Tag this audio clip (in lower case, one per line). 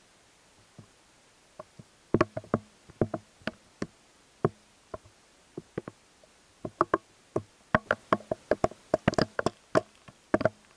outside, rural or natural